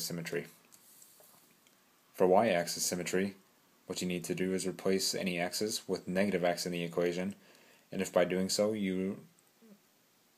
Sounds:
Speech

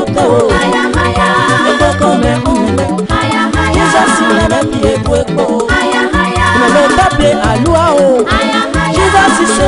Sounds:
Music

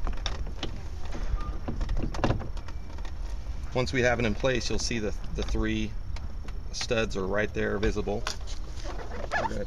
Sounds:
Speech

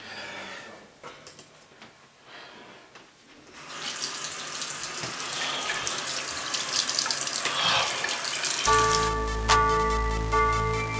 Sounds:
Blues, Music

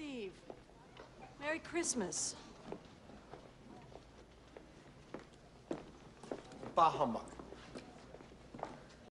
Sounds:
Speech

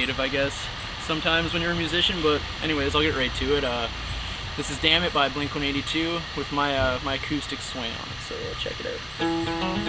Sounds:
Speech, Guitar, Musical instrument, Music, Plucked string instrument

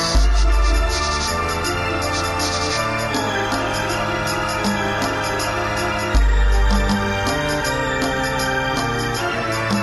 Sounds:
Electronic organ, Music

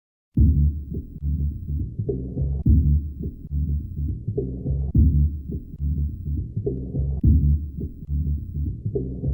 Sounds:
Music

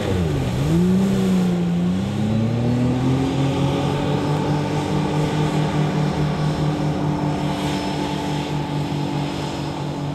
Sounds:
Water vehicle, Vehicle, outside, rural or natural

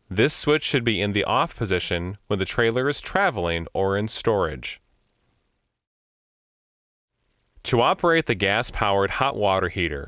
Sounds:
Speech

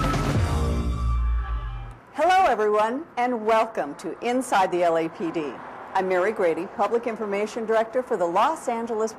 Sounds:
Music, Speech, inside a public space

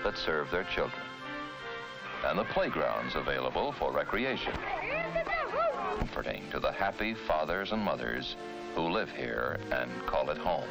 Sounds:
Music, Speech

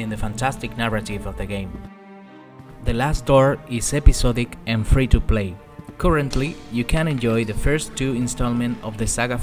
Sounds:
Music, Speech

